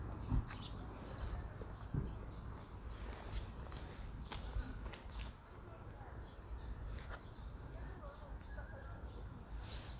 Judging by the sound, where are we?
in a park